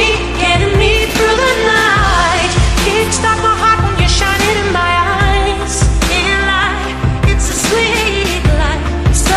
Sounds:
Music, Singing, Music of Asia, Pop music

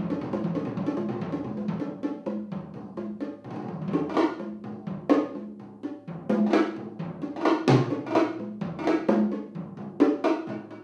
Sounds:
Drum kit, Musical instrument, Music, Drum

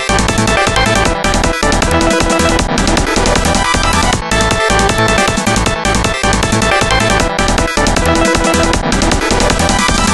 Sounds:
Music

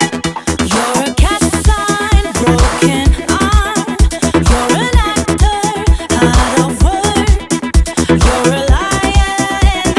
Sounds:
Rock music, Dance music, Independent music, Music

